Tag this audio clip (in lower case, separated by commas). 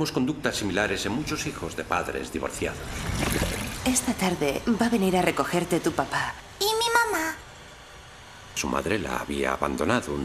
speech